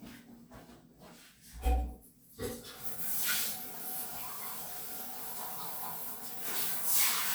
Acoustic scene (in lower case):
restroom